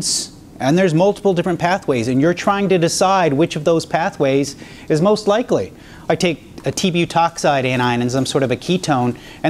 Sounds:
speech

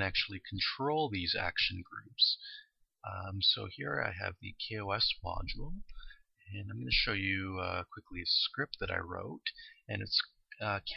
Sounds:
speech

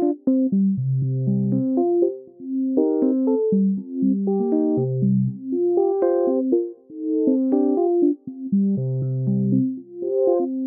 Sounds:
music

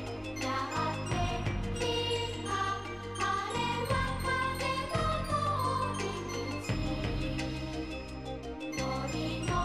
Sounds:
music

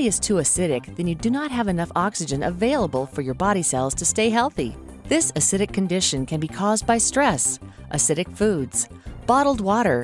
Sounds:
music
speech

